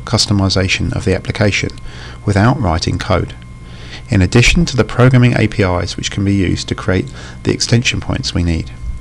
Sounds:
Speech

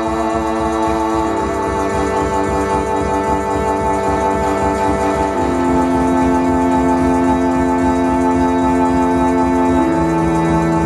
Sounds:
Music

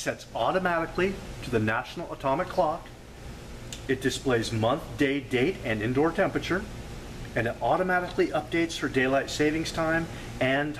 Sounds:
Speech

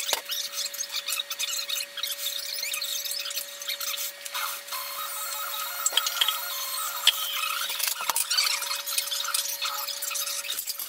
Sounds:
inside a small room

